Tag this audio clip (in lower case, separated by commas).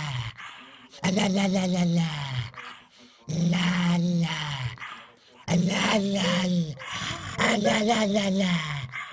dog growling